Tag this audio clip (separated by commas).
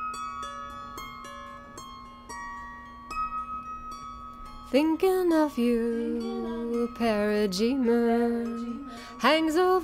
Music